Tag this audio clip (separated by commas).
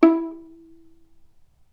Music, Bowed string instrument, Musical instrument